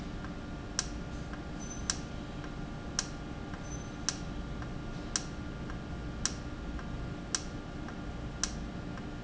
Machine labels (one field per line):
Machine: valve